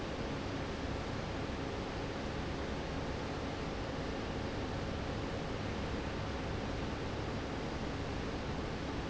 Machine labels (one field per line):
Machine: fan